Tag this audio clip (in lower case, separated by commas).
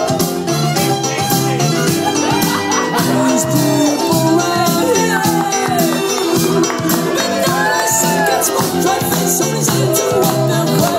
music, speech, rattle (instrument)